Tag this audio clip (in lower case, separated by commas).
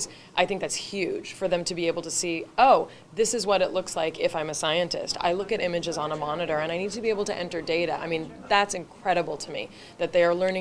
speech